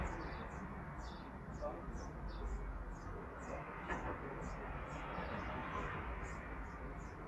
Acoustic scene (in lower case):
residential area